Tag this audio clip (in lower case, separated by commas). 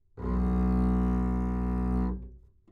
bowed string instrument, music, musical instrument